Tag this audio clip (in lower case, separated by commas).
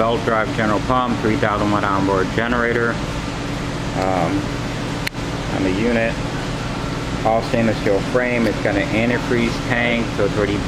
speech, waterfall